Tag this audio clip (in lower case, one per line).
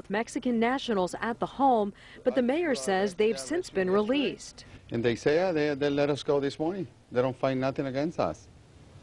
speech